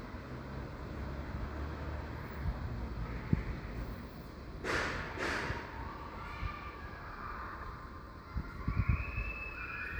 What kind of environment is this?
residential area